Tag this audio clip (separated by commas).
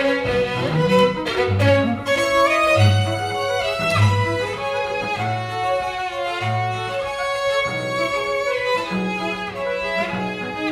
Musical instrument, fiddle, Piano, String section, Music, Bowed string instrument, playing cello, Cello